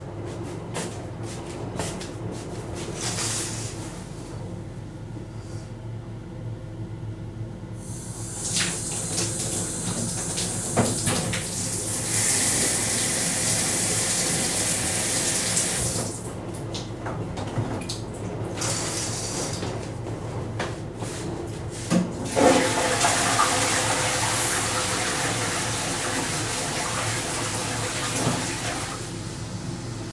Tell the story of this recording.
I walked through the bathroom, I drawed the bath curtain, I turned the shower on for a little bit, I shot it off, I drawed the curtain again, and then flushed the toilet.